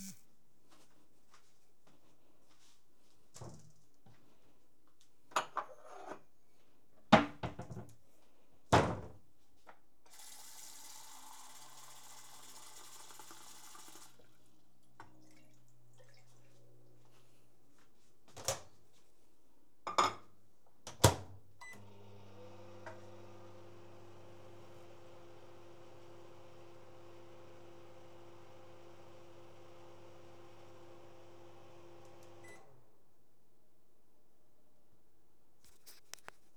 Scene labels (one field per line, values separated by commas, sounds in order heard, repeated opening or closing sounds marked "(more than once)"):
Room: kitchen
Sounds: footsteps, wardrobe or drawer (more than once), cutlery and dishes, running water, microwave